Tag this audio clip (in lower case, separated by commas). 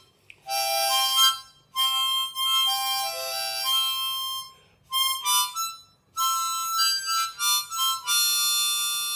harmonica, woodwind instrument